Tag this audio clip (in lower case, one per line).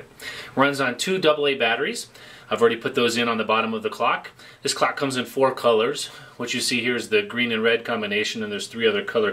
speech